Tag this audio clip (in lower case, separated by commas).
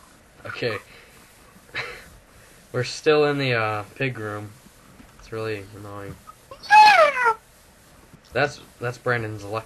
inside a large room or hall, speech